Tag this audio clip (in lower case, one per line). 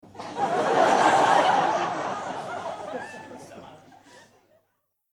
human group actions
laughter
crowd
human voice